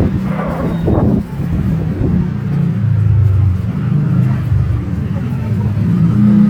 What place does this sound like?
street